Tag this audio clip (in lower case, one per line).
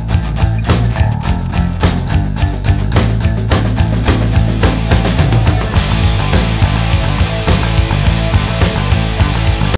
music